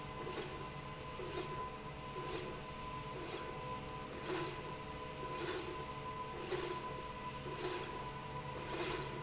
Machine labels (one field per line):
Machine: slide rail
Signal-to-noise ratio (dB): 0 dB